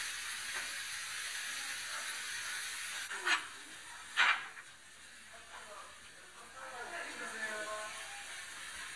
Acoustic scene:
restaurant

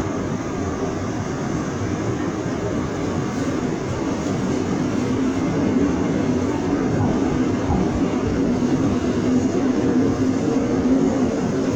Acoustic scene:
subway train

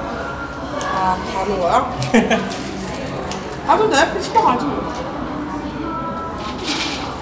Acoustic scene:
cafe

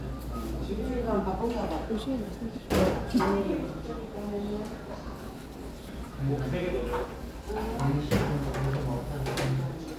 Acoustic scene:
restaurant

